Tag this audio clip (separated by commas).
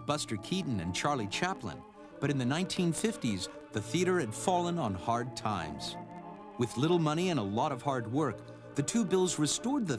Organ, Music, Speech